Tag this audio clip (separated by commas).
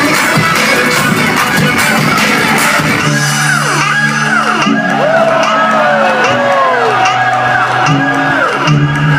Music, Soundtrack music, Disco